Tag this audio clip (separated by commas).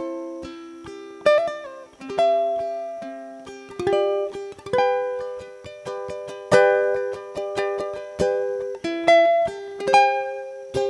playing ukulele